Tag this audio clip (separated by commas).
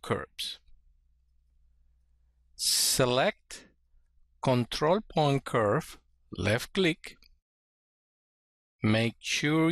Speech